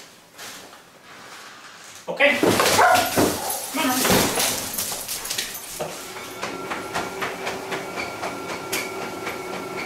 Man talking to his dog and dog getting excited and barking at him